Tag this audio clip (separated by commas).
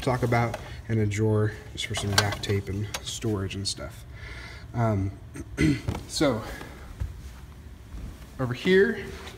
inside a small room, Speech